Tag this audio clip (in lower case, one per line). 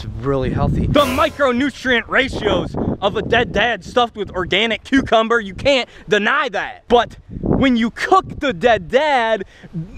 speech